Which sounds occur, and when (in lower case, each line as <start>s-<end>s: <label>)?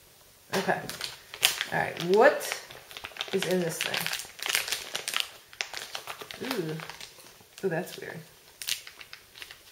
0.0s-9.7s: mechanisms
0.5s-0.7s: crinkling
0.6s-1.0s: woman speaking
0.9s-1.1s: crinkling
1.3s-2.7s: crinkling
1.7s-2.6s: woman speaking
2.9s-5.2s: crinkling
3.2s-4.1s: woman speaking
5.5s-7.0s: crinkling
6.4s-6.9s: woman speaking
7.5s-8.2s: crinkling
7.6s-8.3s: woman speaking
8.6s-9.7s: crinkling